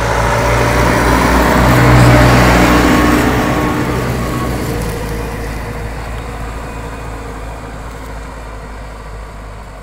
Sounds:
truck

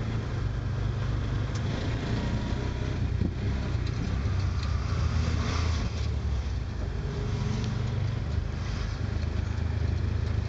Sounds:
vehicle

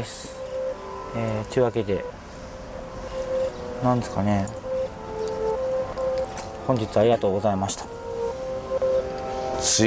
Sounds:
monologue, speech

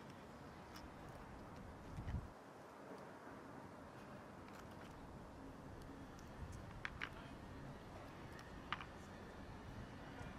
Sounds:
magpie calling

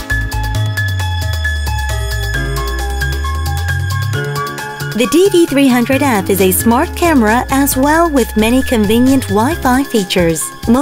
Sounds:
speech, music

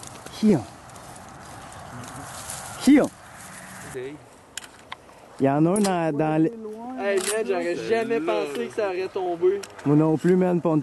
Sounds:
speech

